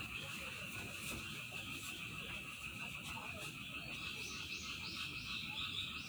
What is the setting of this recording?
park